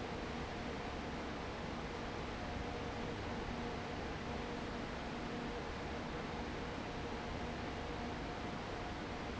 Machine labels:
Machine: fan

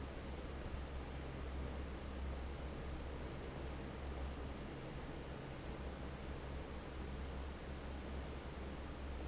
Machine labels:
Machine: fan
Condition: normal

